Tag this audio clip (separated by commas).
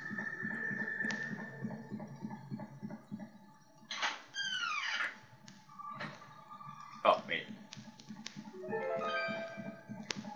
Speech, Music